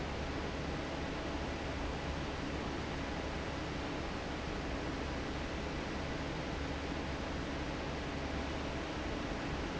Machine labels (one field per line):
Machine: fan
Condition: normal